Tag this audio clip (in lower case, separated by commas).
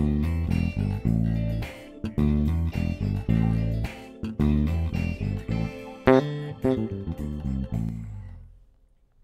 music, bass guitar, guitar, musical instrument, plucked string instrument